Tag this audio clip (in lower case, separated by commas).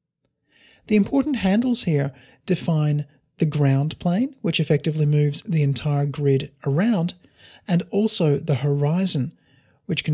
speech